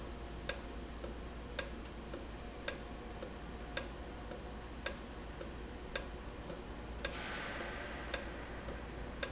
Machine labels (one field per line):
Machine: valve